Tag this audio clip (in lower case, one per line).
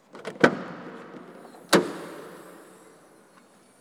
vehicle
door
motor vehicle (road)
car
domestic sounds